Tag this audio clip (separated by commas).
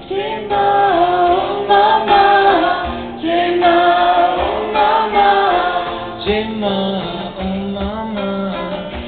Mantra, Music